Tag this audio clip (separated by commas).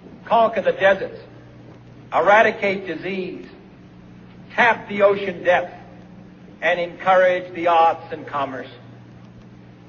Speech, man speaking, Narration